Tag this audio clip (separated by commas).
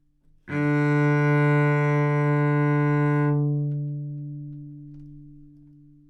Bowed string instrument, Music, Musical instrument